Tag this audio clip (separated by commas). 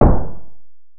Thump